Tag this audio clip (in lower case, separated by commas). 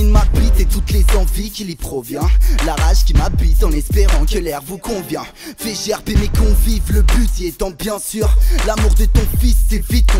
soundtrack music, music